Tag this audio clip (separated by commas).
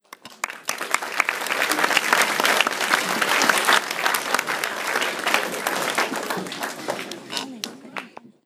Applause, Human group actions